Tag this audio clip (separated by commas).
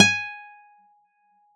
Musical instrument, Guitar, Plucked string instrument, Music, Acoustic guitar